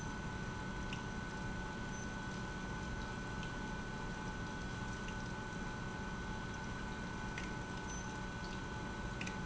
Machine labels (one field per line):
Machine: pump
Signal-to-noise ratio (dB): 0 dB